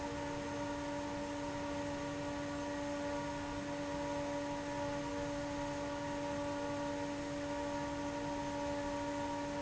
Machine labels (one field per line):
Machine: fan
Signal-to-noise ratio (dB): 0 dB